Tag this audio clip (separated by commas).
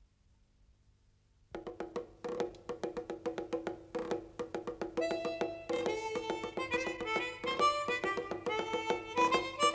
Drum roll, Percussion, Drum